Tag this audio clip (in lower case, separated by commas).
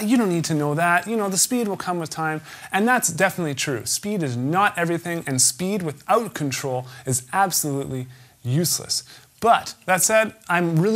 speech